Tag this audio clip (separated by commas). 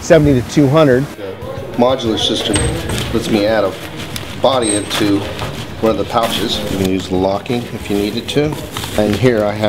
Music, Speech